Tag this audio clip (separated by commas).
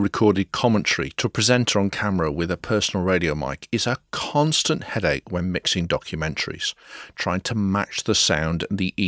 Speech